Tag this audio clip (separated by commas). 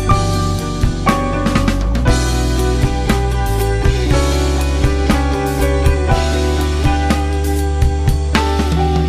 Music